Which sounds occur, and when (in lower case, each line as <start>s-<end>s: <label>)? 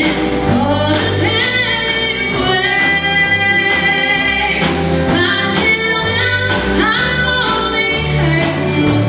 0.0s-9.0s: music
0.5s-4.7s: female singing
4.9s-9.0s: female singing